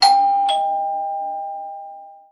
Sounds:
Door, Doorbell, home sounds, Alarm

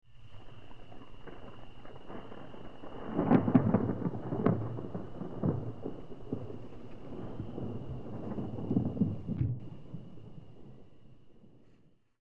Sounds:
Thunderstorm, Thunder

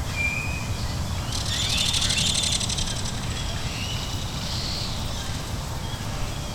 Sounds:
Animal, Wild animals, Bird

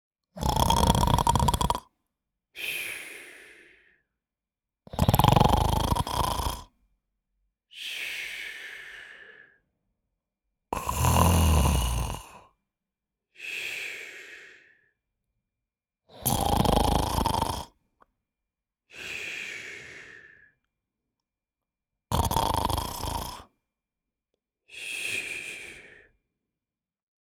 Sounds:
Breathing, Respiratory sounds

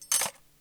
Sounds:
silverware, home sounds

